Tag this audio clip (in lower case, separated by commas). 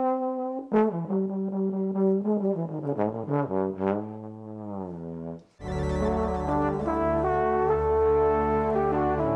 playing trombone